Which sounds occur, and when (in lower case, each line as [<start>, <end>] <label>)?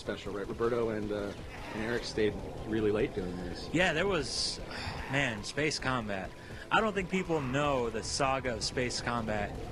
[0.00, 1.31] man speaking
[0.00, 9.71] conversation
[0.00, 9.71] video game sound
[1.39, 2.02] sound effect
[1.64, 2.27] man speaking
[2.60, 4.53] man speaking
[3.01, 3.70] breathing
[4.51, 5.34] sound effect
[5.11, 6.24] man speaking
[6.25, 6.68] breathing
[6.64, 9.46] man speaking
[7.17, 7.97] sound effect